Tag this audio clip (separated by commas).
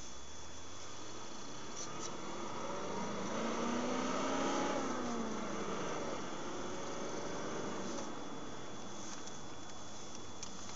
Vehicle